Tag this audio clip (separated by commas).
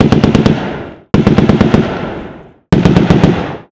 Explosion, Gunshot